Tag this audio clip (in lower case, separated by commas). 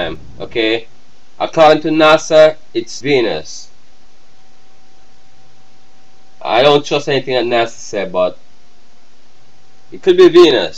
speech